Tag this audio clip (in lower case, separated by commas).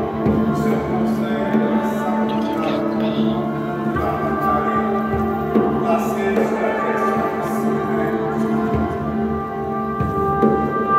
mantra, music